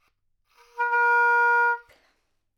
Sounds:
Music, Musical instrument, Wind instrument

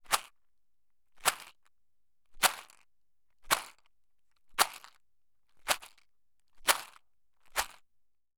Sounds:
Rattle

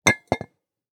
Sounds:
Glass, clink

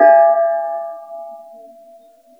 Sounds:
Gong, Music, Percussion, Musical instrument

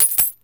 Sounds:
home sounds, Coin (dropping)

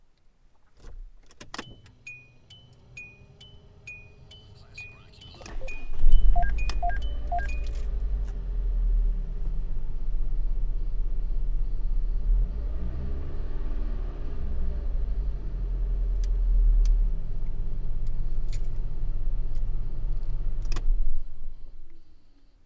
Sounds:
Car, Motor vehicle (road), Engine, Vehicle, Engine starting

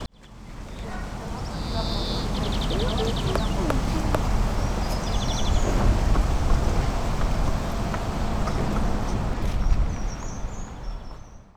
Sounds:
Wild animals, Animal, Bird

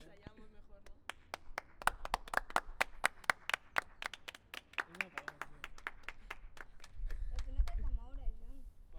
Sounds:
Applause, Hands, Clapping, Human group actions

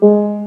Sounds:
Keyboard (musical), Music, Piano, Musical instrument

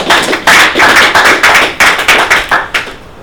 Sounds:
Human group actions, Applause, Hands, Clapping

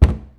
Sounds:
Cupboard open or close, home sounds

